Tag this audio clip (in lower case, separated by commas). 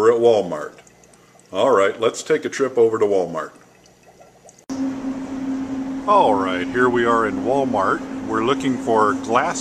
speech